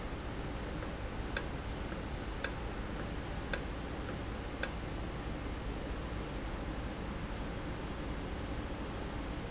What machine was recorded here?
valve